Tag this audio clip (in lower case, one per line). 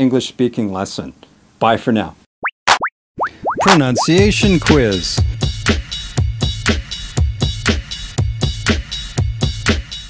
speech
music